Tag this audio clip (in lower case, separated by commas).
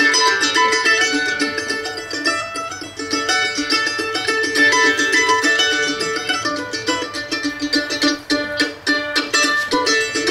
musical instrument, mandolin, guitar, ukulele, plucked string instrument, music